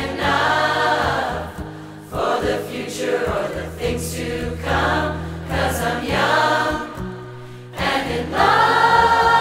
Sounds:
singing choir

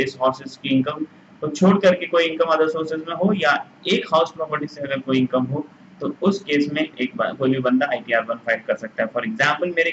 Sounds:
speech

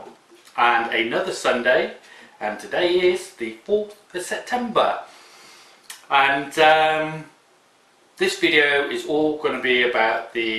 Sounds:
speech

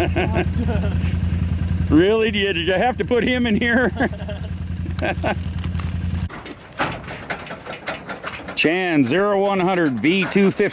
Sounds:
bull bellowing

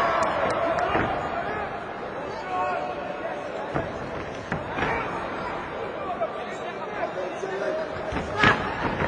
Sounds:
speech

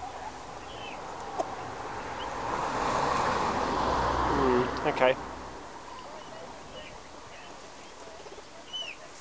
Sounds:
livestock
speech
bird
rooster

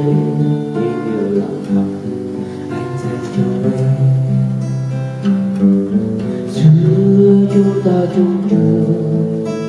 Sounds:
guitar
strum
plucked string instrument
musical instrument
music
playing acoustic guitar
acoustic guitar

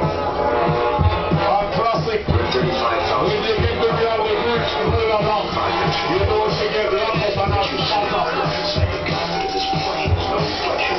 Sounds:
music
speech

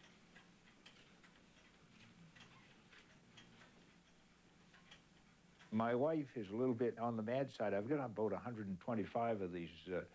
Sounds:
speech

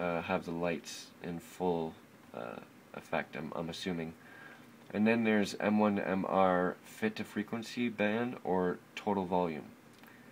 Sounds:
speech

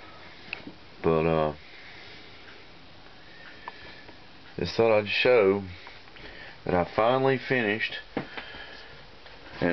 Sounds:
speech

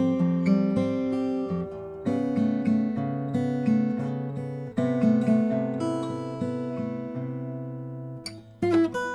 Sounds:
music

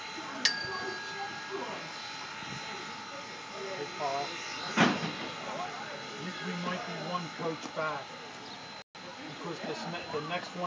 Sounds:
speech

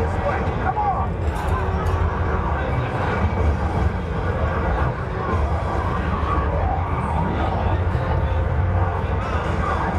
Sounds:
speech

